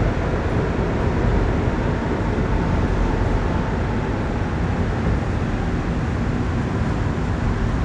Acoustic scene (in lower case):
subway train